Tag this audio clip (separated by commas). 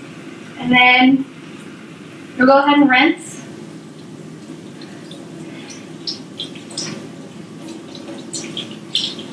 inside a small room, Speech